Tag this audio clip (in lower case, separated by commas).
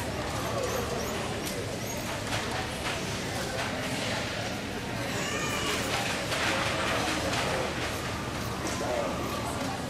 domestic animals, speech, animal, dog